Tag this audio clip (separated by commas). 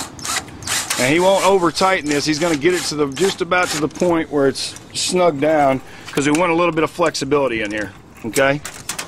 Speech